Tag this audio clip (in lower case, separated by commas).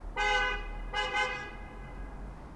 roadway noise, alarm, vehicle, honking, motor vehicle (road), car